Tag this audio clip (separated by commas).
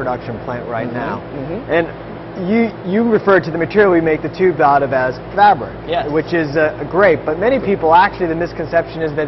Speech